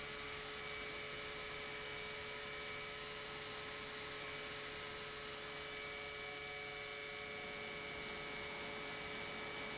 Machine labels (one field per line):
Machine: pump